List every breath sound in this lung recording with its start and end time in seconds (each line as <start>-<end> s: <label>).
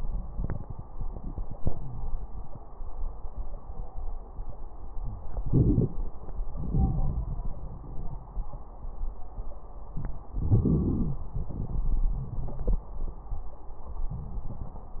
5.42-6.01 s: inhalation
5.42-6.01 s: crackles
6.57-8.38 s: exhalation
6.57-8.38 s: crackles
10.36-11.29 s: inhalation
10.36-11.29 s: crackles
11.32-12.89 s: exhalation
11.32-12.89 s: crackles